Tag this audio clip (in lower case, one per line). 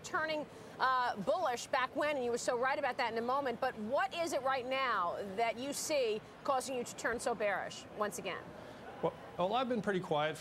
speech